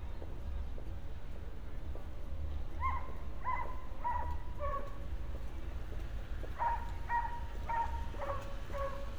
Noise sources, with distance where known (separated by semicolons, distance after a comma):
dog barking or whining, near